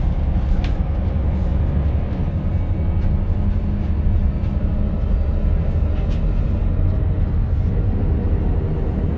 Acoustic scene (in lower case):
bus